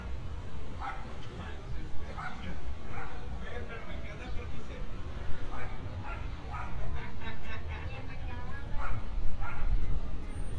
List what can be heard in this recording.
person or small group talking, dog barking or whining